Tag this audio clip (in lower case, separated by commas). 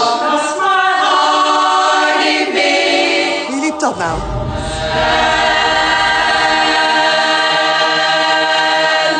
choir, a capella, music, singing